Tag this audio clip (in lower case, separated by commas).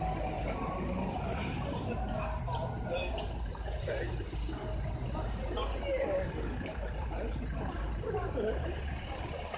vehicle, traffic noise, car